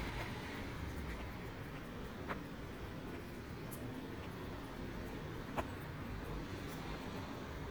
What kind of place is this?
residential area